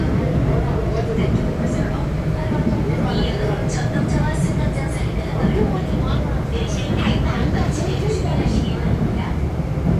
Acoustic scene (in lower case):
subway train